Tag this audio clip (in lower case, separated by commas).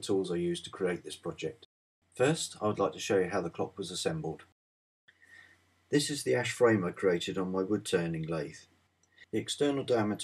speech